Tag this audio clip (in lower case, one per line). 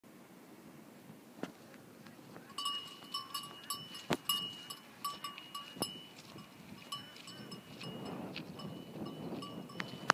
bovinae cowbell